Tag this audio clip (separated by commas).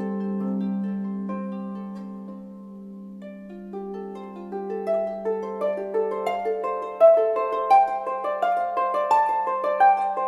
Pizzicato, Harp